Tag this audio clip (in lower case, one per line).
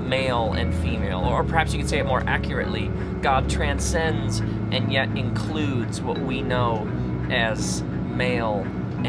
speech
music